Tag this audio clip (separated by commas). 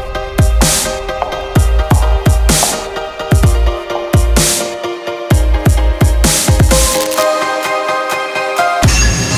Music